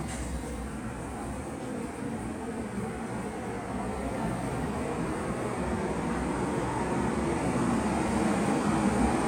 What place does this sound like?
subway station